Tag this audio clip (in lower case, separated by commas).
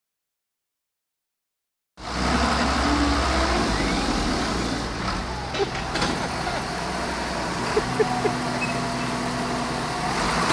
motor vehicle (road), vehicle